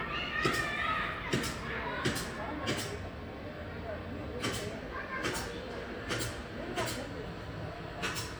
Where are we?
in a residential area